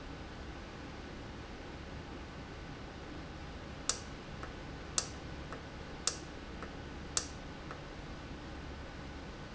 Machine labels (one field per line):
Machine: valve